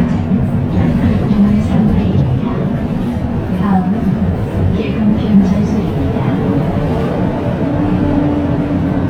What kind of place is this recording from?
bus